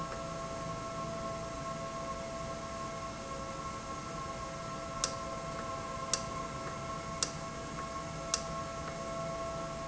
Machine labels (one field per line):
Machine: valve